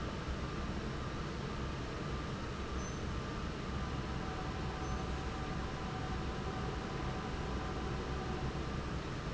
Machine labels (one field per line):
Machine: fan